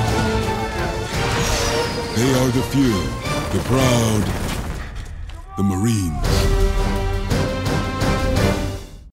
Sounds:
Sound effect

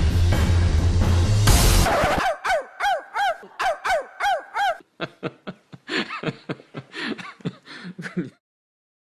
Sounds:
Bow-wow, Music

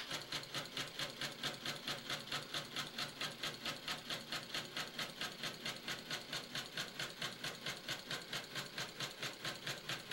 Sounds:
Heavy engine (low frequency)

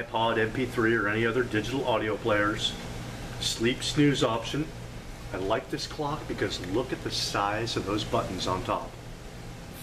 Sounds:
Speech

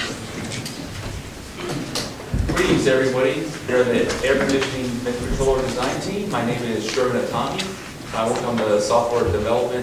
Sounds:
Speech

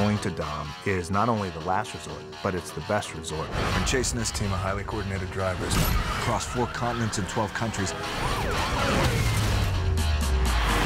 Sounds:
Speech, Music

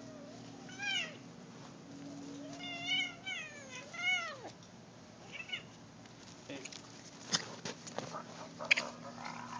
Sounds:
Animal, Cat, Caterwaul, cat meowing, pets, Meow

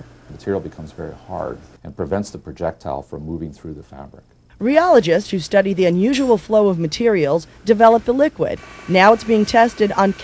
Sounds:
Speech

